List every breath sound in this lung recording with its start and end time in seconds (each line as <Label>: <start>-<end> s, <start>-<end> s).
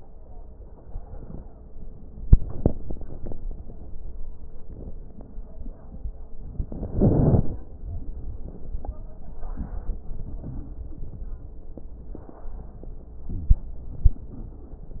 Inhalation: 6.27-7.77 s, 13.27-13.84 s
Exhalation: 13.86-15.00 s
Crackles: 6.27-7.77 s, 13.27-13.84 s, 13.86-15.00 s